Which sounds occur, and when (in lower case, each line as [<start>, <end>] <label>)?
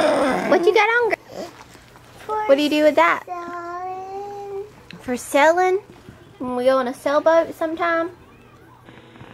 [0.00, 0.75] human sounds
[0.00, 9.33] background noise
[0.46, 1.14] kid speaking
[1.26, 1.57] breathing
[1.51, 1.98] generic impact sounds
[2.24, 3.18] kid speaking
[3.28, 4.68] child singing
[4.79, 4.99] generic impact sounds
[4.92, 5.78] kid speaking
[5.87, 6.33] human sounds
[6.33, 8.07] kid speaking
[8.11, 8.85] human sounds
[8.84, 9.33] generic impact sounds